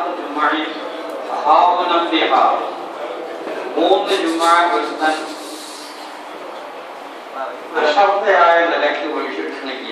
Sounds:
narration
speech
man speaking

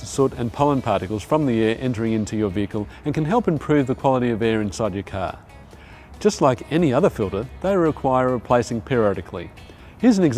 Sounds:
speech
music

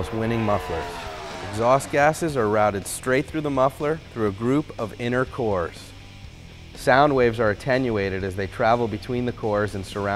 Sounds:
speech
music

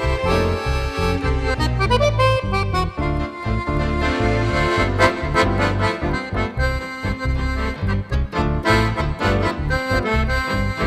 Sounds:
playing accordion

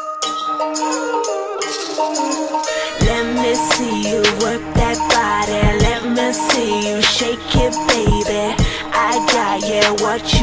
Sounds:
music

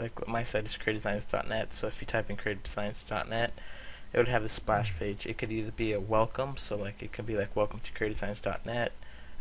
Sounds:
speech

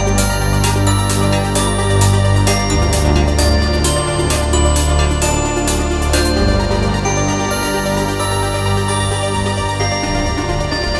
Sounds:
music

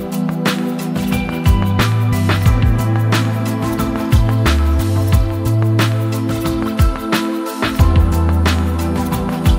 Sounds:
music

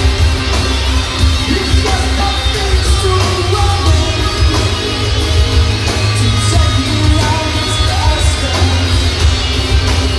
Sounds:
singing
inside a public space
music

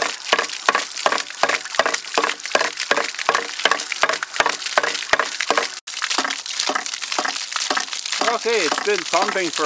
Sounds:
pumping water

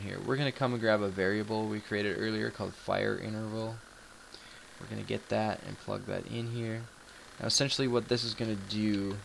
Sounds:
speech

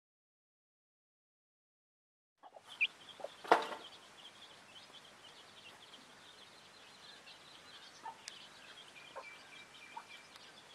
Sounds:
chicken clucking

